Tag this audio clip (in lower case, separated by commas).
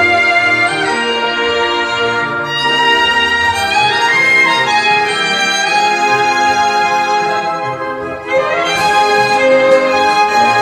musical instrument, fiddle, music